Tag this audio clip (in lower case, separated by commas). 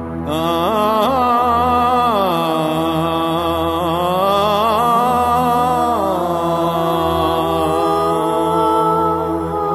music, ambient music, electronic music